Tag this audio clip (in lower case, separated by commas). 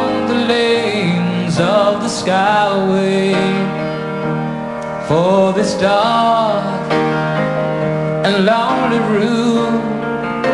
music